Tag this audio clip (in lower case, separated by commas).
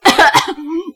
respiratory sounds, cough